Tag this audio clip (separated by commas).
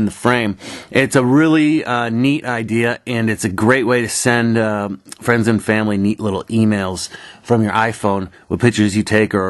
Speech, inside a small room